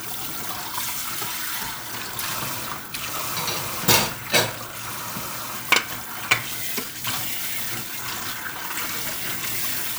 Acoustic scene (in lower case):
kitchen